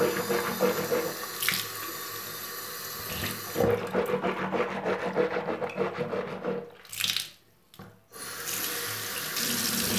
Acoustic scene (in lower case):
restroom